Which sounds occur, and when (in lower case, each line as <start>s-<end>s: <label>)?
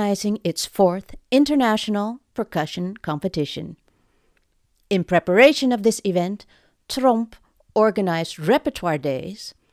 0.0s-1.1s: female speech
0.0s-9.7s: mechanisms
1.3s-2.2s: female speech
2.3s-3.7s: female speech
2.9s-3.0s: tick
3.7s-3.9s: tick
4.3s-4.5s: tick
4.7s-4.8s: tick
4.9s-6.4s: female speech
5.7s-5.8s: tick
6.4s-6.8s: breathing
6.9s-7.4s: female speech
7.3s-7.6s: breathing
7.7s-9.5s: female speech